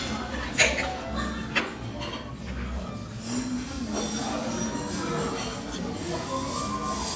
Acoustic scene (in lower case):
restaurant